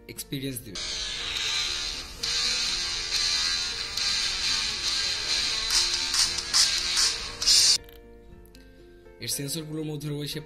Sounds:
Music, Speech

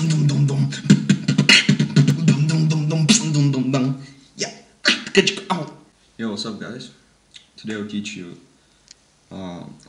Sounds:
Beatboxing, Speech

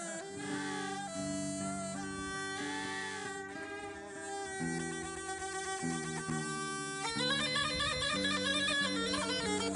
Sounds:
Bagpipes, playing bagpipes, woodwind instrument

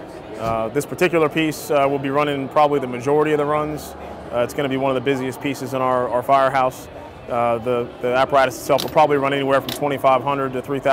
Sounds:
Speech

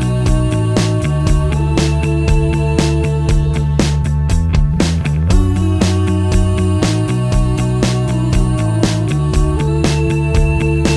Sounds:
Music

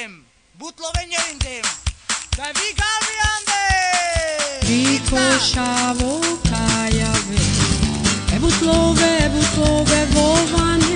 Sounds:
Music

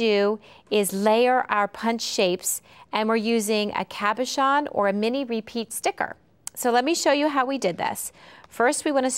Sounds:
Speech

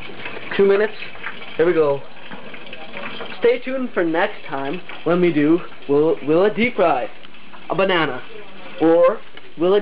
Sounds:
Speech

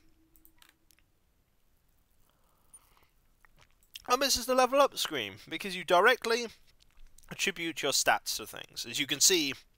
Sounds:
Speech

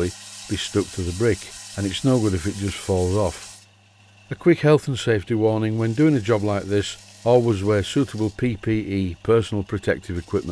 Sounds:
Speech

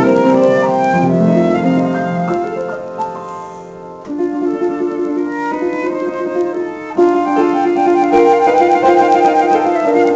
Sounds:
playing flute

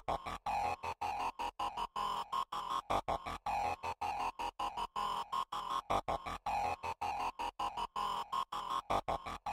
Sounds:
Musical instrument, Music

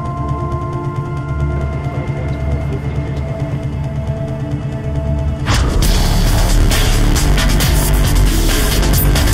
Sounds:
Music

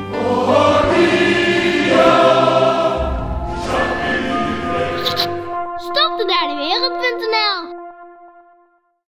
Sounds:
Speech, Music

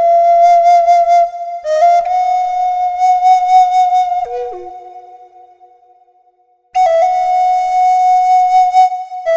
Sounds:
Music, Flute

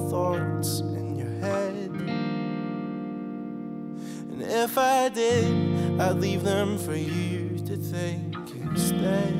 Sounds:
Singing, Music

